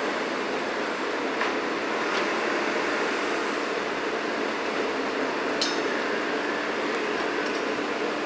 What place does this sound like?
street